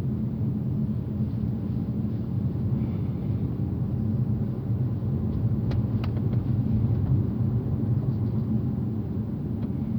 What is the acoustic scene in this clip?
car